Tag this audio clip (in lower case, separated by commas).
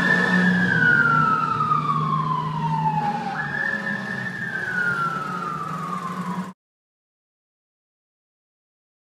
medium engine (mid frequency), vehicle, engine